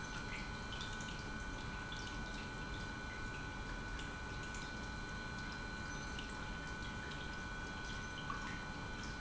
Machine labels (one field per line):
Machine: pump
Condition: normal